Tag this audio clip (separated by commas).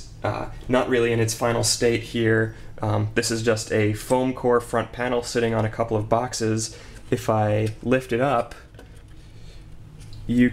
Speech